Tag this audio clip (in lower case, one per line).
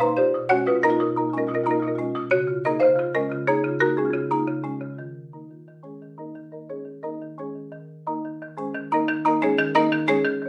marimba
musical instrument
percussion
music